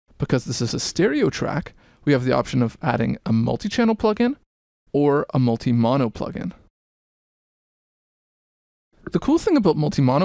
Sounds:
Speech

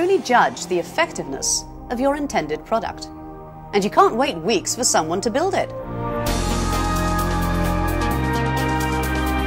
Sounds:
Music, Speech

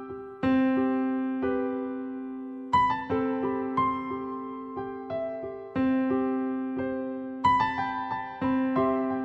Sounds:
Tender music, Music

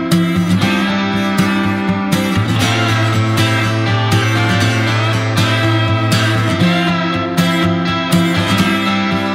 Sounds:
Music

